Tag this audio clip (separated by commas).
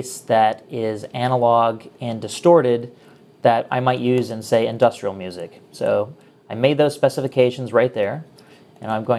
Speech